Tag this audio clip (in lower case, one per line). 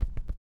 run